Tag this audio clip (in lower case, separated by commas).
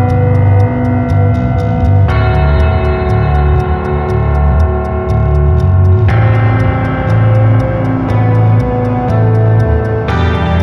musical instrument, piano, music, plucked string instrument, guitar